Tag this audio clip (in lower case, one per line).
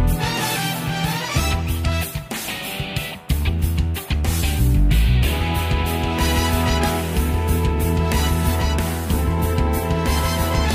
music